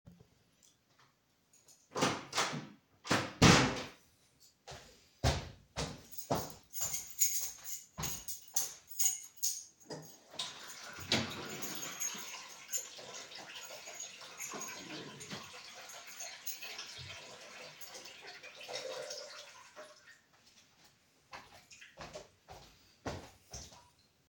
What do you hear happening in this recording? I close the door inside the living room and walk with my keychain into the kitchen. Then open the water faucet.